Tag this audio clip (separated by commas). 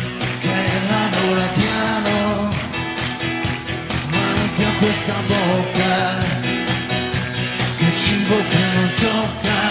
Music